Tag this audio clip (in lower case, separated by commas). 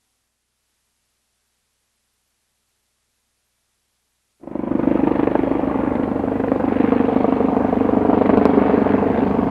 vehicle